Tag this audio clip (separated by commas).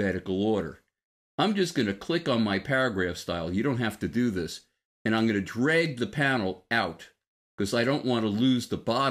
Speech, monologue